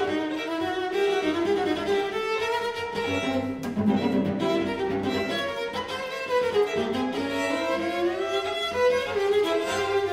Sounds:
violin, string section, musical instrument, bowed string instrument, music, cello, orchestra, classical music

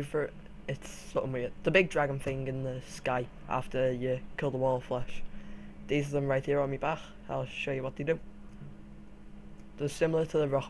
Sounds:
speech

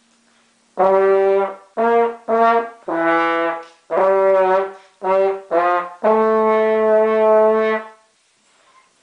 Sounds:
playing french horn

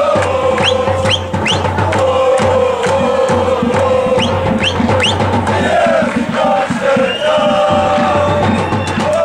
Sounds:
male singing, music

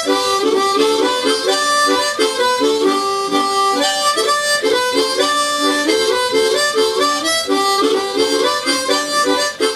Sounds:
harmonica, music

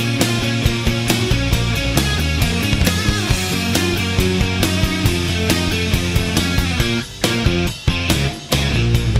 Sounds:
music

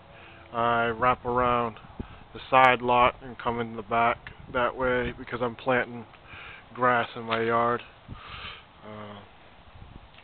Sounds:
speech

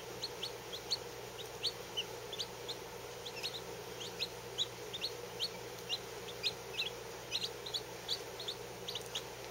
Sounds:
domestic animals, bird, rooster

